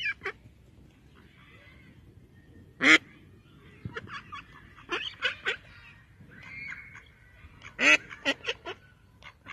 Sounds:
duck quacking

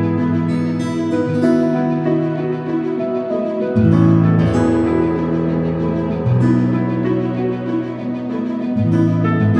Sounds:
Music

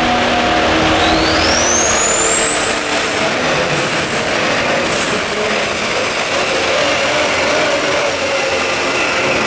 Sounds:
Vehicle, outside, urban or man-made

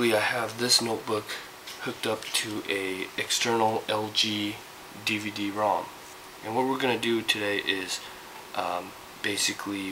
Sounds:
Speech

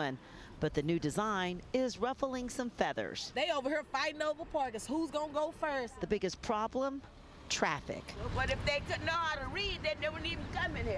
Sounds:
Speech

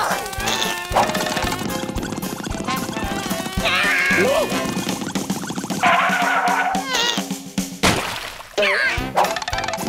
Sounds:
housefly, Insect, bee or wasp

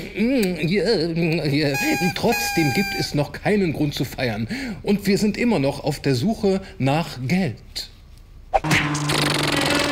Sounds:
Speech, Music

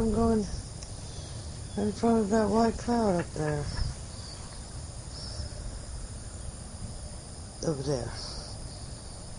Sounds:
Speech, Bird

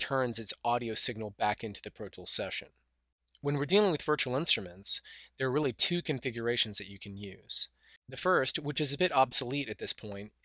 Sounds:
Speech

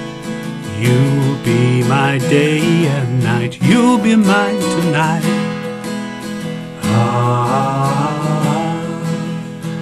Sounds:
Music

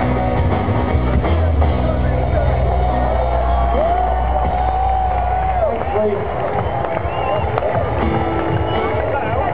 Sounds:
Blues, Speech, Music

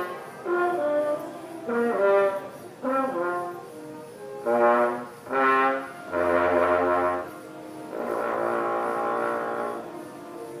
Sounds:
playing french horn

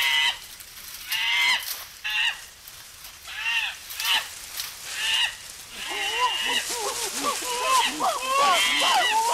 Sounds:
Animal, Wild animals

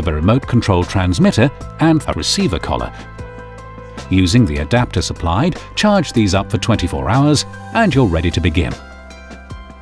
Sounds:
Speech, Music

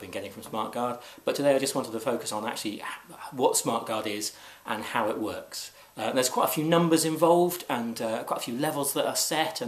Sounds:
Speech

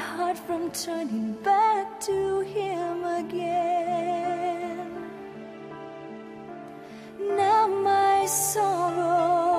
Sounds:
Soul music, Music

